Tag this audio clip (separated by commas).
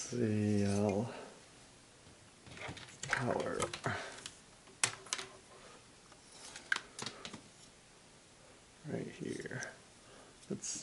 inside a small room, Speech